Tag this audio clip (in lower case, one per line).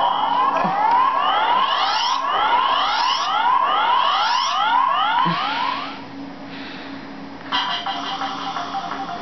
music
inside a small room